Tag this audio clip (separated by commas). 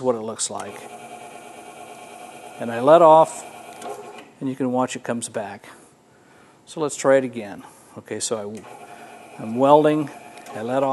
Speech, inside a small room